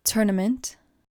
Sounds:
Human voice, Speech

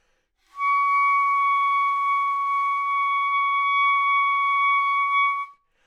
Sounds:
Musical instrument, Wind instrument, Music

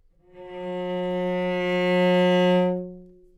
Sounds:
Music, Musical instrument, Bowed string instrument

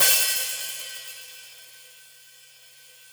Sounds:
Music, Hi-hat, Musical instrument, Percussion, Cymbal

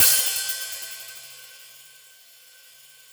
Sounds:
Hi-hat, Cymbal, Percussion, Musical instrument, Music

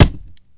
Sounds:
Thump

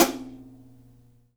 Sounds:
Cymbal, Hi-hat, Percussion, Musical instrument, Drum, Music

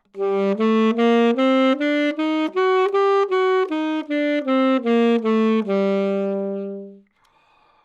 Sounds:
Music, woodwind instrument, Musical instrument

